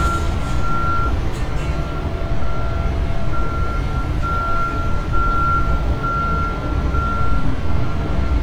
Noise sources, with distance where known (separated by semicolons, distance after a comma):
large-sounding engine, near